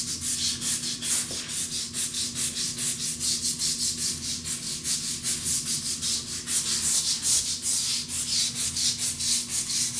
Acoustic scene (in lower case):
restroom